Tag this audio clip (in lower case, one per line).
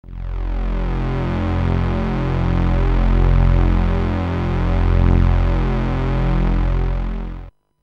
music
scary music